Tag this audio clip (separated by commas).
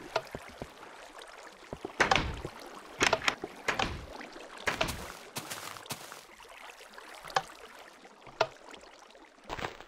Water vehicle